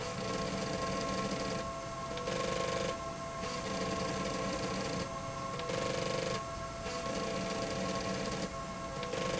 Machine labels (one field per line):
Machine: slide rail